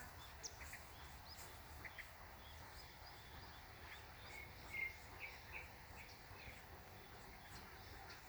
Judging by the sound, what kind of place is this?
park